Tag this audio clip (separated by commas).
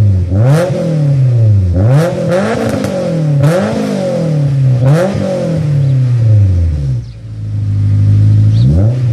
Car passing by